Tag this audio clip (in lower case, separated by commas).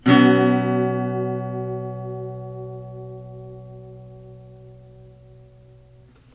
musical instrument, plucked string instrument, guitar, music, acoustic guitar, strum